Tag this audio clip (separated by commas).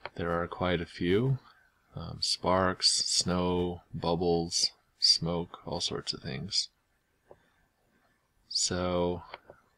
Speech